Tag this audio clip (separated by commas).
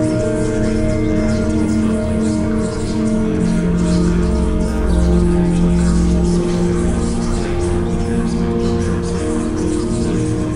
Music